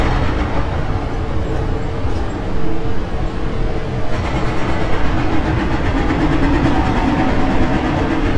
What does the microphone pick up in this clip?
hoe ram